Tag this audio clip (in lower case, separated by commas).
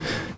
breathing, respiratory sounds